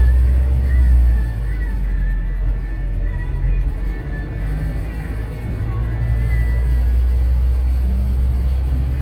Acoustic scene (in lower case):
bus